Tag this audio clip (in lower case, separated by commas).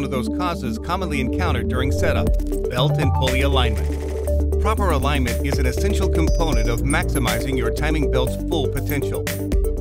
speech, music